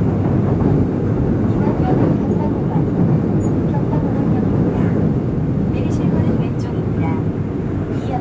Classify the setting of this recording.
subway train